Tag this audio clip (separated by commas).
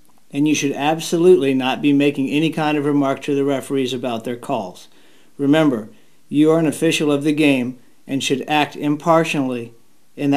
Speech